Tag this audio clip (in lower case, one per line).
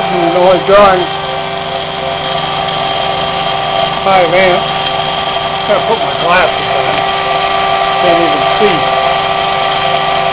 inside a small room
speech
power tool